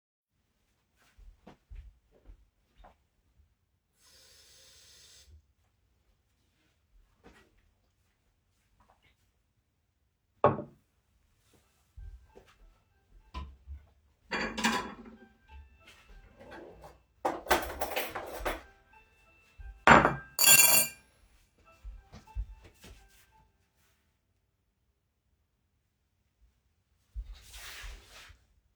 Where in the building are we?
kitchen, bedroom